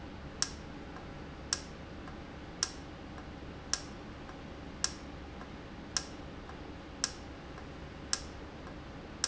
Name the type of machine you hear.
valve